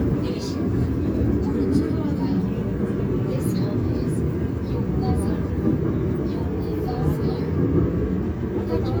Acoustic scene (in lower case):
subway train